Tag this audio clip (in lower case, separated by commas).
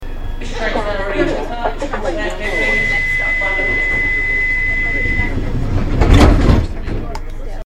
rail transport, vehicle, subway